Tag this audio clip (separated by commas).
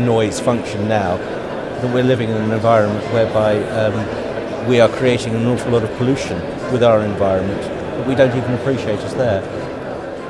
Speech, Music